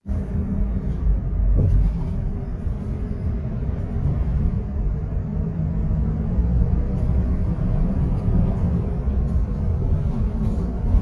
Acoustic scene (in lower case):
bus